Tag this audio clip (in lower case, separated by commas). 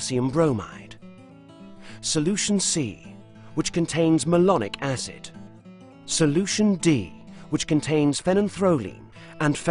music, speech